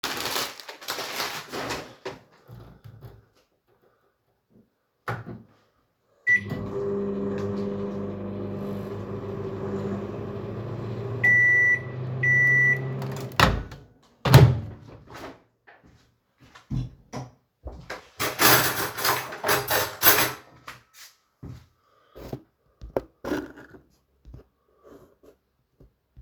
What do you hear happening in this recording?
I started the microwave and handled some cutlery on the counter.